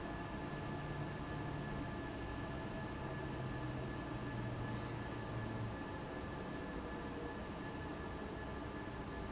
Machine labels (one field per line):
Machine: fan